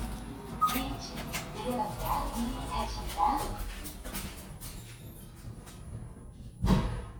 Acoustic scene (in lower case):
elevator